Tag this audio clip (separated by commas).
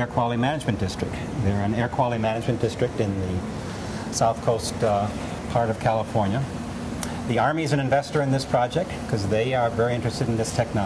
Speech